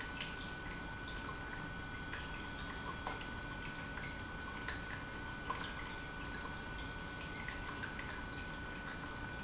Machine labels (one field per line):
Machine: pump